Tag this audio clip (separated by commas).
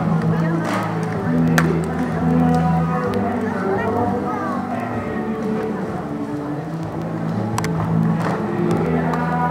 Speech, Music